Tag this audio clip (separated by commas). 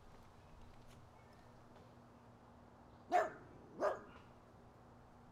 Animal, Dog, pets